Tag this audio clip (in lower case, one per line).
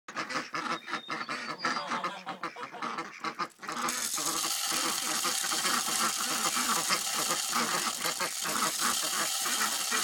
fowl
goose